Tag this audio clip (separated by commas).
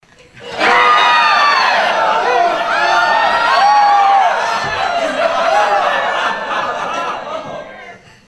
Crowd, Human group actions